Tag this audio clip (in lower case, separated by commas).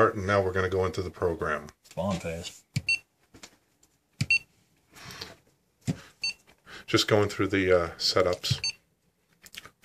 inside a small room, speech